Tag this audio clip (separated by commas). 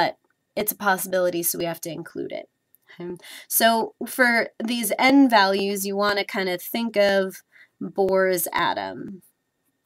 Speech, inside a small room